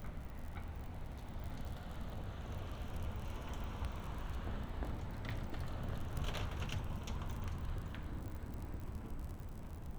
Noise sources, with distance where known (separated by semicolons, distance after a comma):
background noise